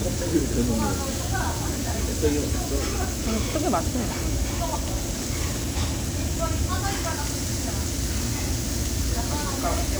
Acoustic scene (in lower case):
crowded indoor space